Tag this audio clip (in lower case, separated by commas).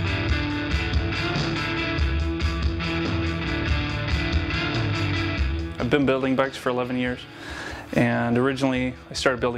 music, speech